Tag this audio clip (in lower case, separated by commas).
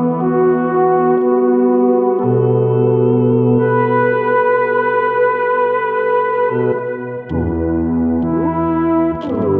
bass guitar, musical instrument, electric guitar, music, plucked string instrument, guitar